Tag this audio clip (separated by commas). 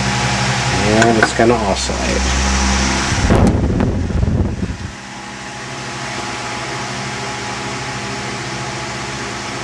Mechanical fan, Speech